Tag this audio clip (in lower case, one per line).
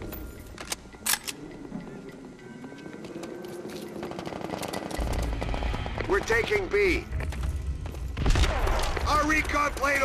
inside a large room or hall
speech